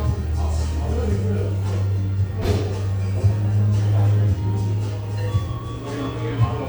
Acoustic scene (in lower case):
cafe